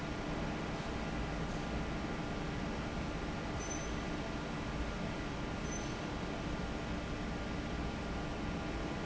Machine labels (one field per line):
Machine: fan